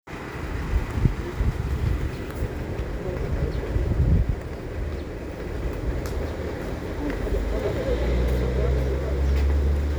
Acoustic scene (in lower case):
residential area